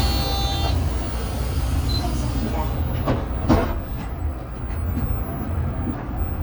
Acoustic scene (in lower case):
bus